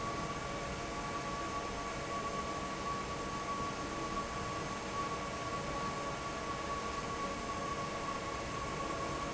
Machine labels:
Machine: fan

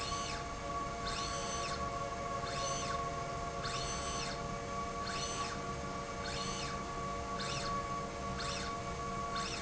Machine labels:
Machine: slide rail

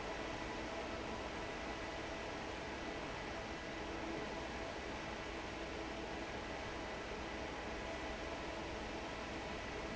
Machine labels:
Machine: fan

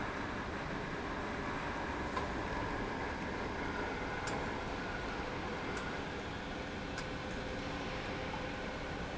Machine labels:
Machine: pump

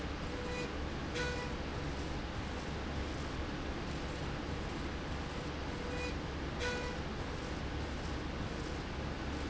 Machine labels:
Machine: slide rail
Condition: normal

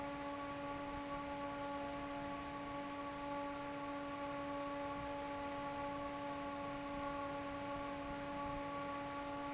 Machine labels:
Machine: fan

